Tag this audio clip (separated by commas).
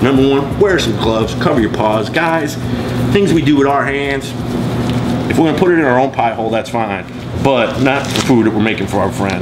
Speech